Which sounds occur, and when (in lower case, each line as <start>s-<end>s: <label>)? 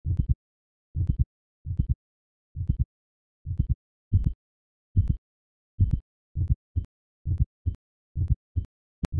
0.0s-0.3s: heartbeat
0.9s-1.2s: heartbeat
1.6s-1.9s: heartbeat
2.5s-2.8s: heartbeat
3.4s-3.7s: heartbeat
4.1s-4.3s: heartbeat
4.9s-5.2s: heartbeat
5.8s-6.0s: heartbeat
6.3s-6.5s: heartbeat
6.7s-6.8s: heartbeat
7.2s-7.4s: heartbeat
7.6s-7.7s: heartbeat
8.1s-8.3s: heartbeat
8.5s-8.7s: heartbeat
9.0s-9.1s: heartbeat